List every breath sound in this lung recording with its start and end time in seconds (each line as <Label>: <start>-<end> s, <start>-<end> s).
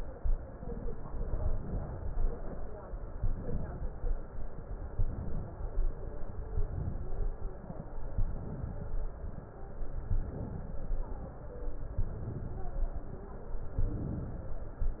Inhalation: 1.22-2.20 s, 3.15-4.13 s, 4.94-5.61 s, 6.53-7.20 s, 8.21-8.88 s, 10.12-10.86 s, 12.02-12.77 s, 13.84-14.58 s